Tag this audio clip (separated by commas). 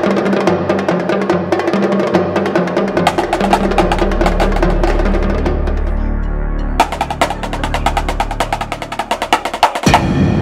playing snare drum